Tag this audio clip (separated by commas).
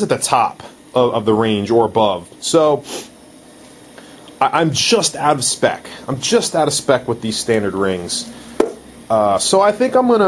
Engine, Speech, inside a small room